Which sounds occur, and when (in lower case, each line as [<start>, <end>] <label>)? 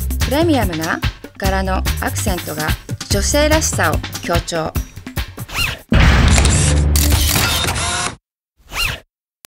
[0.00, 5.48] music
[0.19, 0.99] female speech
[1.38, 1.86] female speech
[1.98, 2.71] female speech
[3.07, 4.00] female speech
[4.20, 4.73] female speech
[5.44, 5.78] sound effect
[5.92, 6.82] sound effect
[6.22, 6.80] single-lens reflex camera
[6.95, 8.14] sound effect
[6.98, 8.17] single-lens reflex camera
[8.51, 9.01] sound effect
[9.40, 9.45] generic impact sounds